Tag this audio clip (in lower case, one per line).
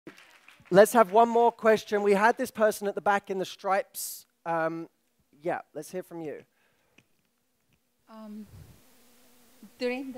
woman speaking